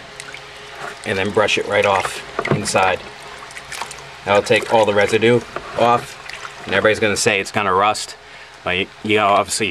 Water is trickling and lightly splashing as a man is speaking